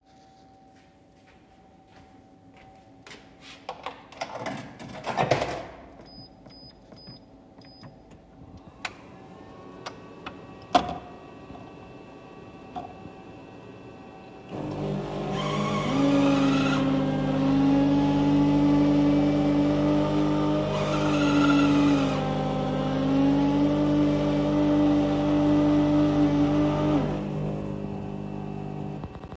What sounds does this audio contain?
footsteps, coffee machine